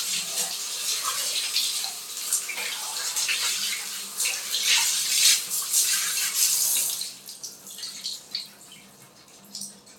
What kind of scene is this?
restroom